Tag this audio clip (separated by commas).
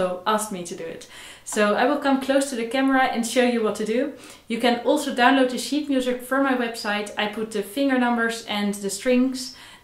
Speech